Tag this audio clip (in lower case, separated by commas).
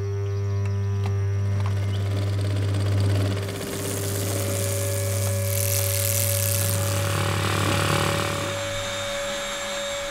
motorcycle, vehicle